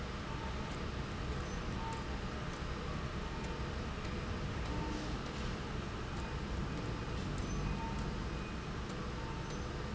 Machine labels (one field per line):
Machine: slide rail